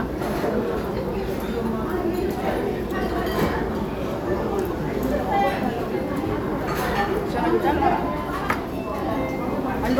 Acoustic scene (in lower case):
restaurant